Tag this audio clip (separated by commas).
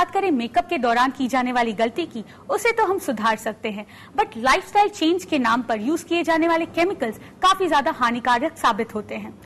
Speech